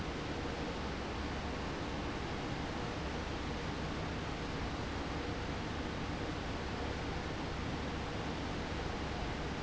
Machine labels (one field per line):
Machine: fan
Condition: abnormal